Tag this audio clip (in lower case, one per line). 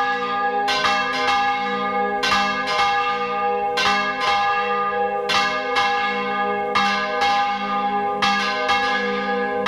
church bell ringing